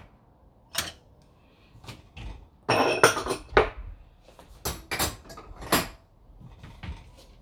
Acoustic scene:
kitchen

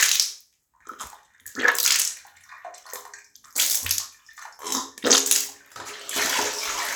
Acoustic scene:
restroom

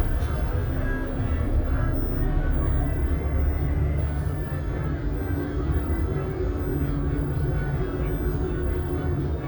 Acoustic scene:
bus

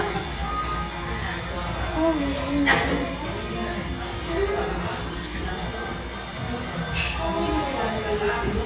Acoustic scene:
cafe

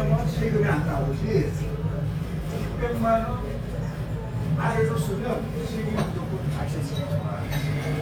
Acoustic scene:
restaurant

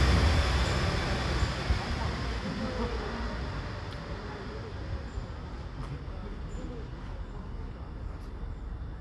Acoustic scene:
residential area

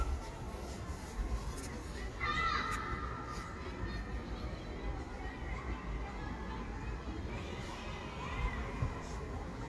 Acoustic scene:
residential area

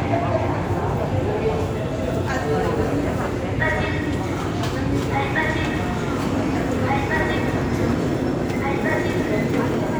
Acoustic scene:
subway station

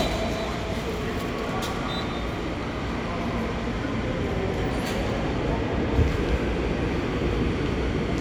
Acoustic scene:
subway station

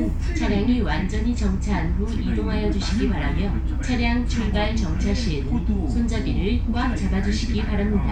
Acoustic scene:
bus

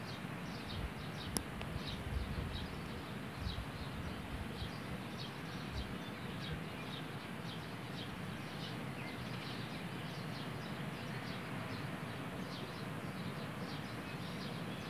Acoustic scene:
park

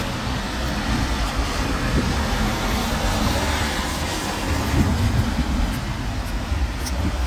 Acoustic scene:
street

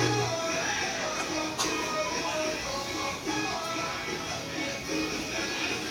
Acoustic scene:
restaurant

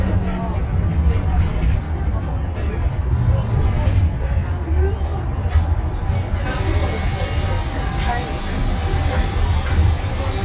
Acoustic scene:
bus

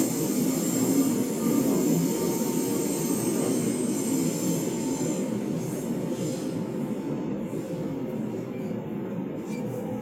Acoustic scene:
subway train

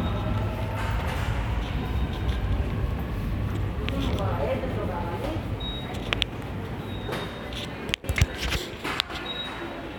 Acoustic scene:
subway station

